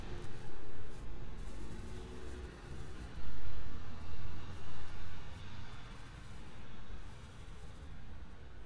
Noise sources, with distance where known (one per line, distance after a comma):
background noise